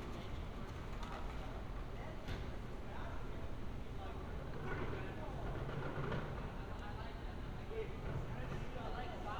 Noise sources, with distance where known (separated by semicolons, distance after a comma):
background noise